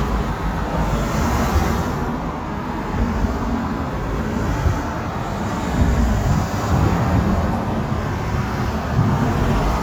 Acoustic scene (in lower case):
street